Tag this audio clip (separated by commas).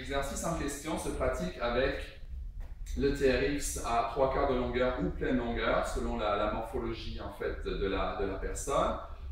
Speech